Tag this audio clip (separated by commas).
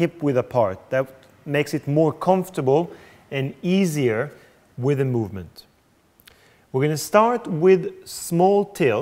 Speech